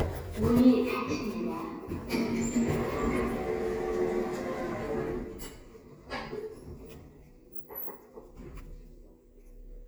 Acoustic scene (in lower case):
elevator